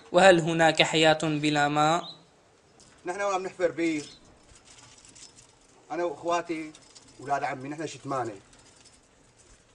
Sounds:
speech

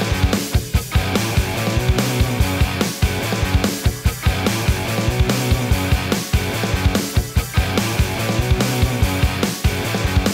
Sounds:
grunge, music

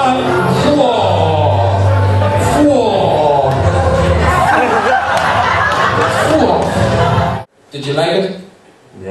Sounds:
chatter, speech

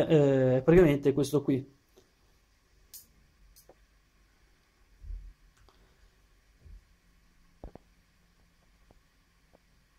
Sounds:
speech

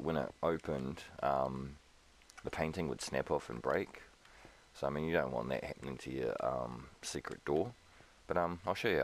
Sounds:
speech

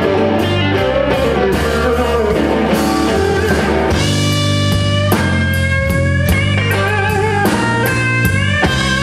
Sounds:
musical instrument, guitar, plucked string instrument, music

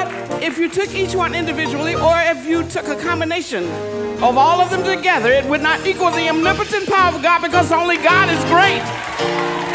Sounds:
music, speech

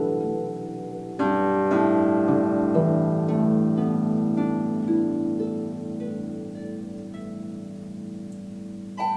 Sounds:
musical instrument, music, harp, plucked string instrument, playing harp

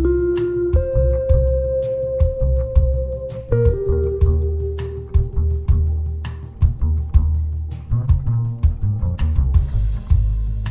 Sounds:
playing vibraphone, percussion, vibraphone, music, musical instrument

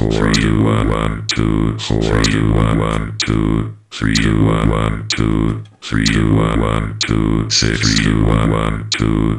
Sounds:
music, sampler, synthesizer

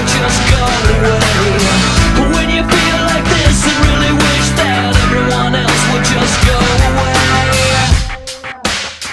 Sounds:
music

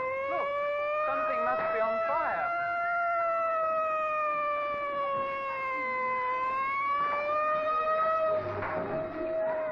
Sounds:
fire truck siren

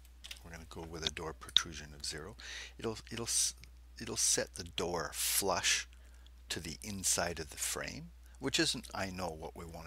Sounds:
speech

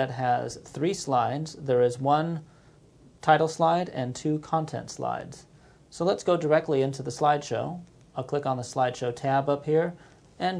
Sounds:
speech

